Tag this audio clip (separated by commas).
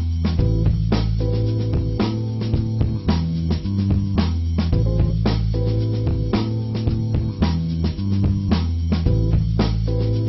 Music